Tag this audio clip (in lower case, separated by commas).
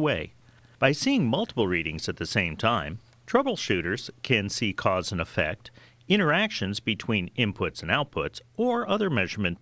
speech